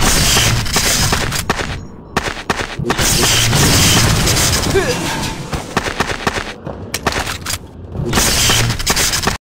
Small bursts of popping sounds